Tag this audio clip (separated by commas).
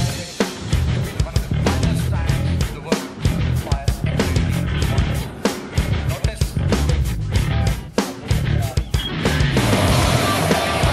Music, Speech